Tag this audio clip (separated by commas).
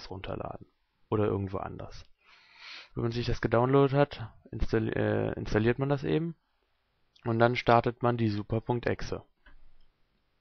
Speech